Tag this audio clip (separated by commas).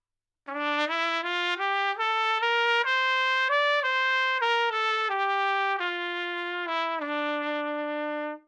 Music, Trumpet, Musical instrument, Brass instrument